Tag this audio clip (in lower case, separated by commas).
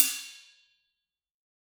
cymbal, hi-hat, percussion, musical instrument, music